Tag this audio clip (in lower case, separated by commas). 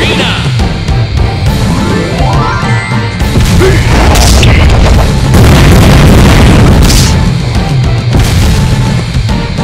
music, speech